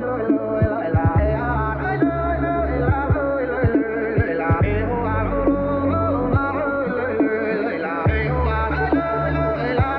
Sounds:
electronic music
dubstep
music

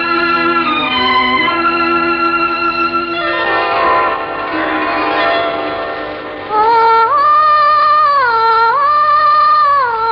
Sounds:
music
singing

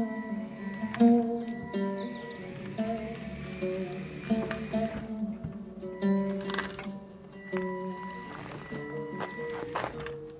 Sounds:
music

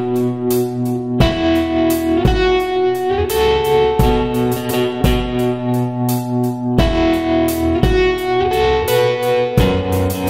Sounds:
electric guitar
musical instrument
music
guitar

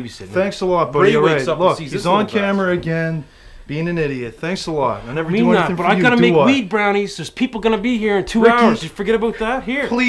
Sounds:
speech

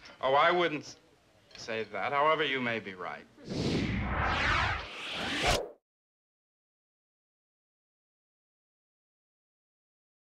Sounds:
speech
inside a small room

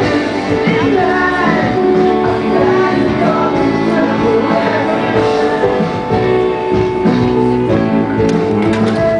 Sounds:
music

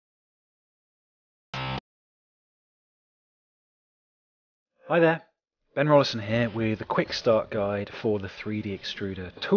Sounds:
music
speech

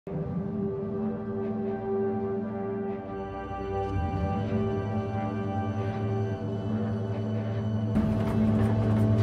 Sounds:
foghorn

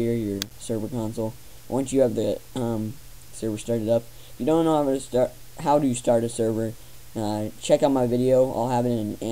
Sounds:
speech

